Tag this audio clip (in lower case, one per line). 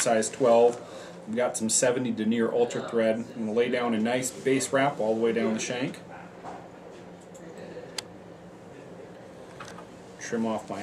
speech